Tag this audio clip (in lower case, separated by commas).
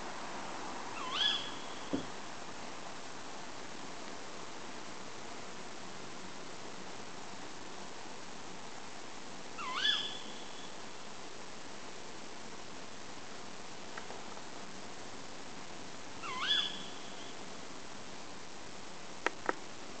bird call, animal, bird, wild animals